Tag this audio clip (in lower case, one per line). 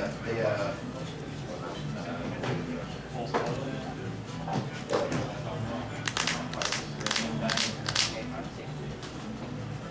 music
tap
speech